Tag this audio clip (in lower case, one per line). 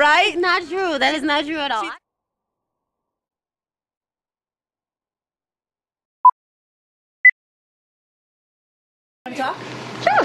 speech
inside a large room or hall